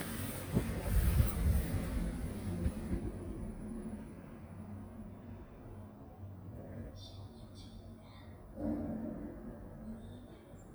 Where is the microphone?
in an elevator